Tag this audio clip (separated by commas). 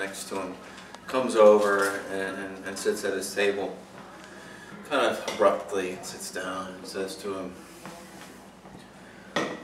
inside a small room, Speech